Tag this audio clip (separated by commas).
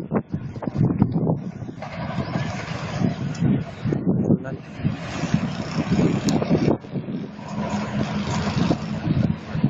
Railroad car, Rail transport, Speech, Train, Vehicle